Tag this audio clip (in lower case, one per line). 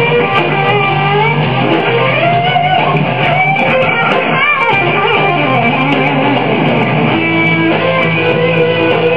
strum
music
playing electric guitar
musical instrument
plucked string instrument
electric guitar
guitar